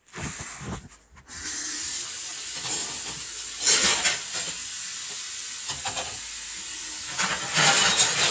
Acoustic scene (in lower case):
kitchen